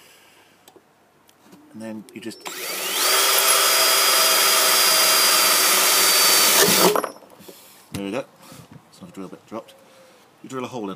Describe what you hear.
A man speaking while drilling